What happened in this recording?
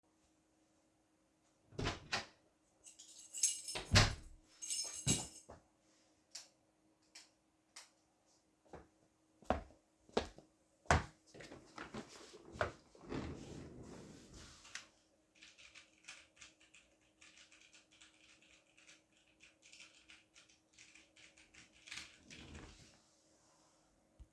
I opened the office door, tossed my keys away, turned on the lights, and walked to my desk. I sat down in the desk chair, moved to my monitors and started typing on my keyboard.